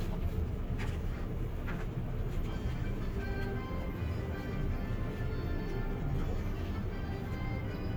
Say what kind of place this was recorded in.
bus